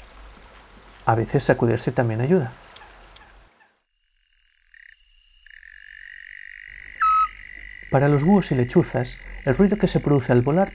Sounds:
Bird, Speech

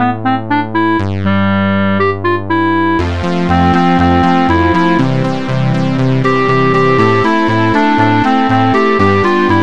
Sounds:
Music

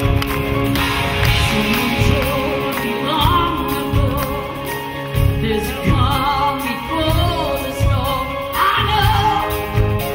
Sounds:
Music

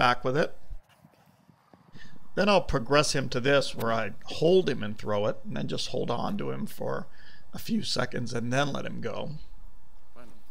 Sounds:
Speech

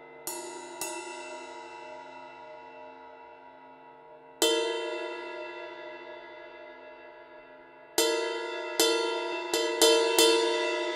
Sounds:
Cymbal, Music

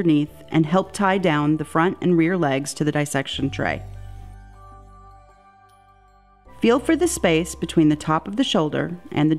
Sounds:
Speech, Music

